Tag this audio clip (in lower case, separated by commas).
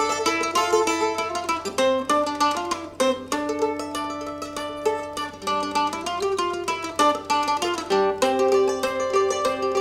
mandolin, music